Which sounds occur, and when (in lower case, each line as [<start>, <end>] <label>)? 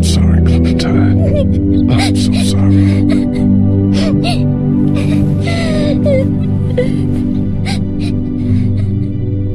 [0.00, 1.43] male speech
[0.00, 9.54] music
[0.00, 9.54] noise
[0.43, 1.15] crying
[1.25, 1.40] crying
[1.85, 3.00] crying
[1.86, 2.54] male speech
[3.06, 3.21] crying
[3.31, 3.45] crying
[3.86, 4.08] crying
[4.23, 4.39] crying
[4.96, 5.20] crying
[5.38, 5.95] crying
[6.04, 6.30] crying
[6.71, 7.40] crying
[7.60, 7.87] crying
[7.96, 8.14] crying
[8.35, 8.67] crying
[8.73, 8.92] crying